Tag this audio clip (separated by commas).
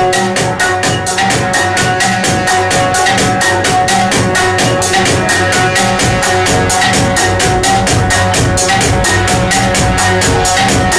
Music